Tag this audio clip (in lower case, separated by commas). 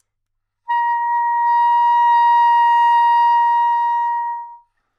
wind instrument, music, musical instrument